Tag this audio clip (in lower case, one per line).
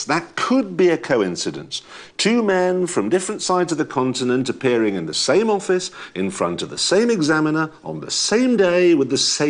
speech